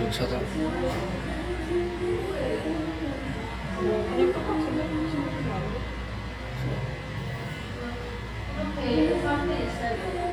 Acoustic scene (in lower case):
cafe